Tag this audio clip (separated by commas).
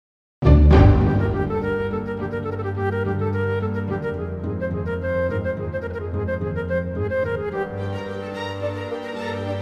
Violin, Music, Musical instrument